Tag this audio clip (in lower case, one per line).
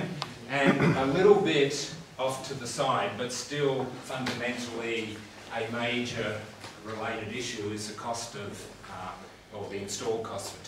speech